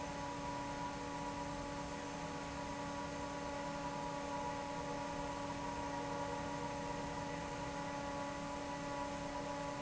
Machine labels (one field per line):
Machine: fan